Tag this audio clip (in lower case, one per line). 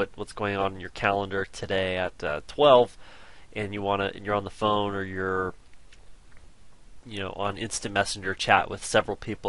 speech